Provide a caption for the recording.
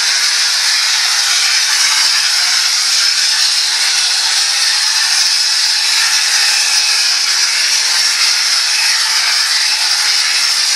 This sounds like the spray from the hose when washing down something